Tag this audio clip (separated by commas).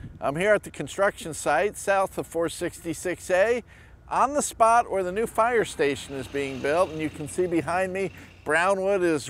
Speech